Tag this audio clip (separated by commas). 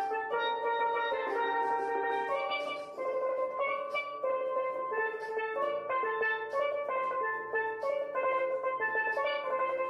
playing steelpan